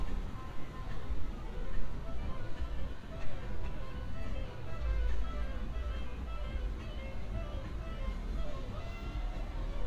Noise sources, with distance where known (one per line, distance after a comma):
music from a fixed source